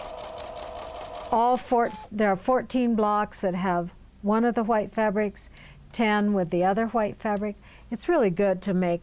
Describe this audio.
A sewing machine briefly runs and stops, then a woman starts speaking